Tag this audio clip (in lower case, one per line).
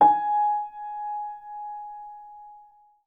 musical instrument
music
keyboard (musical)
piano